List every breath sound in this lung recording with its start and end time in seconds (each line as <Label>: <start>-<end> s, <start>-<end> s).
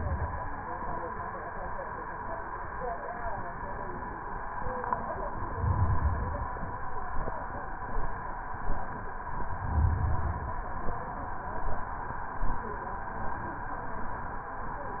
Inhalation: 5.47-6.57 s, 9.48-10.58 s